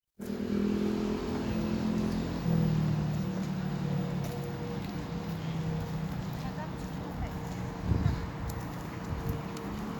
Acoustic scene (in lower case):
street